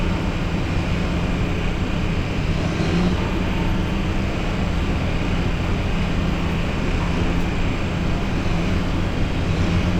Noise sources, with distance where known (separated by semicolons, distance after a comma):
large-sounding engine, near